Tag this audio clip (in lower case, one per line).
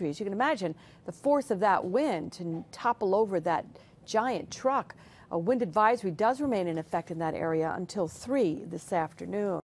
speech